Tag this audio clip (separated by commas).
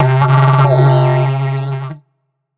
Music, Musical instrument